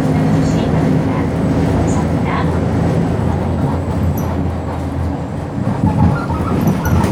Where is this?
on a bus